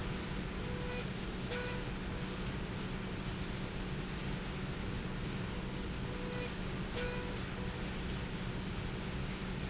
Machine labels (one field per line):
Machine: slide rail